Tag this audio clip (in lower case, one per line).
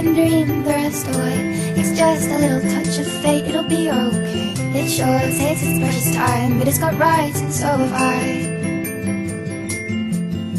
music
electronic music